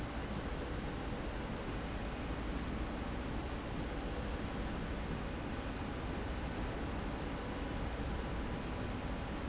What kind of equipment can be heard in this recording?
slide rail